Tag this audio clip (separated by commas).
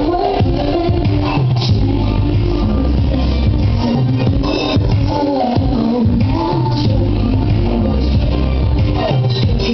Music